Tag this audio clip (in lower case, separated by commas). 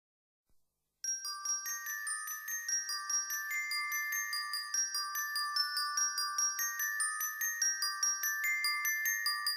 xylophone, glockenspiel, mallet percussion